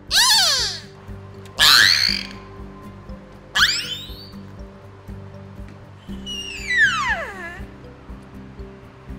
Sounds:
whale calling

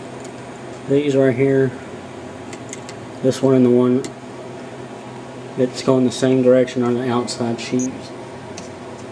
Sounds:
speech
inside a small room

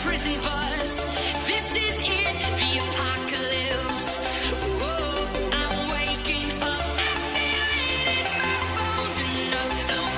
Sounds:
music

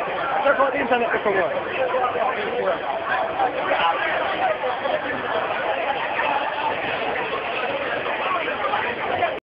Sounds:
speech

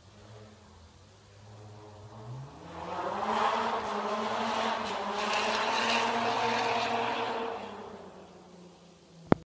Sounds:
sound effect

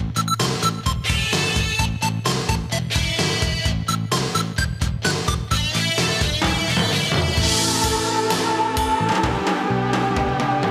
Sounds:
music

